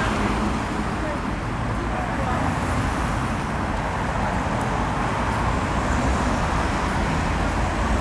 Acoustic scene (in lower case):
street